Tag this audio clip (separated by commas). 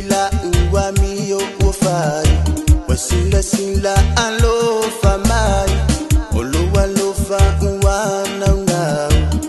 Music